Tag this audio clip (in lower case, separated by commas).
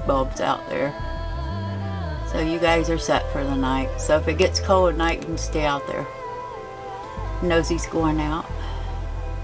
speech, music